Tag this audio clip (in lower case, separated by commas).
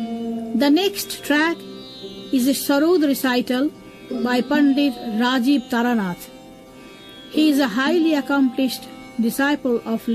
music, speech